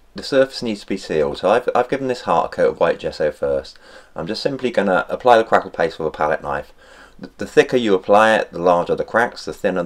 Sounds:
speech

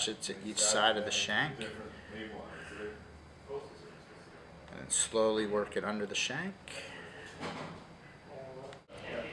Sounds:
speech

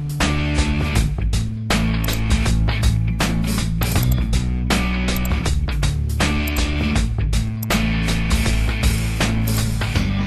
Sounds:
music

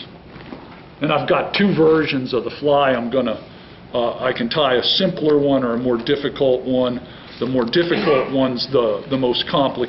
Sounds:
speech

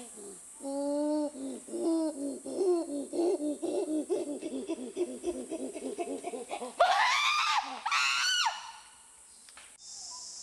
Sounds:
chimpanzee pant-hooting

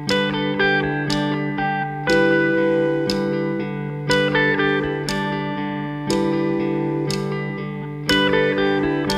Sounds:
music, tender music

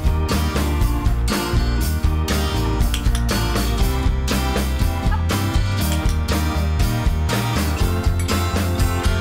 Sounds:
music, speech

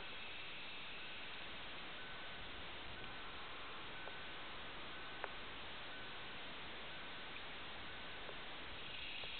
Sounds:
outside, rural or natural, animal

